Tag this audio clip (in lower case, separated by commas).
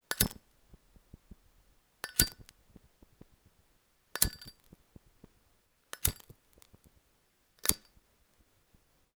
fire